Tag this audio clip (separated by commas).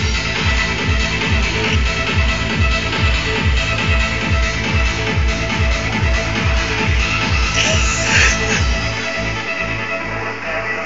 Techno, Music